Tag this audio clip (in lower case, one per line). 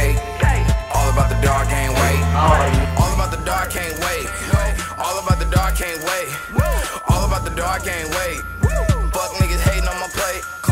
music